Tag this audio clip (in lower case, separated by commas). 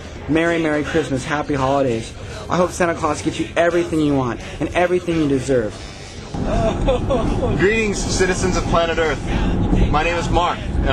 music, speech